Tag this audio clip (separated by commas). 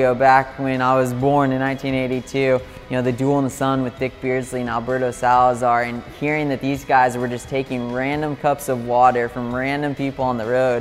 inside a small room, Music, Speech